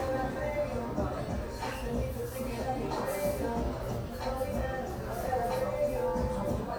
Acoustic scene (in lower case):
cafe